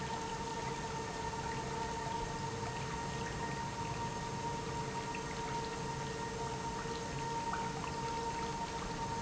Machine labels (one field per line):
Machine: pump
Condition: normal